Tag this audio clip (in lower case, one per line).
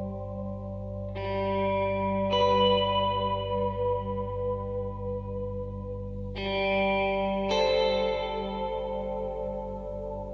music
effects unit